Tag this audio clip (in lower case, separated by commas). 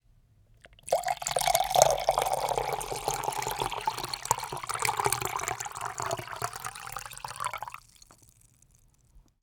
fill (with liquid), dribble, liquid, pour